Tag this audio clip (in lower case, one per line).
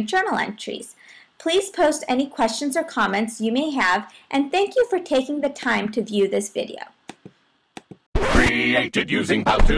speech